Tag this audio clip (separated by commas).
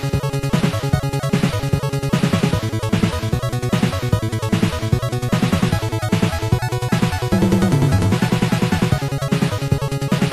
Video game music, Music